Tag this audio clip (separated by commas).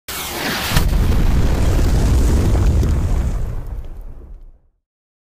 Explosion